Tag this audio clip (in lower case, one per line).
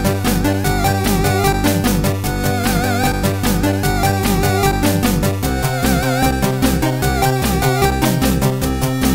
music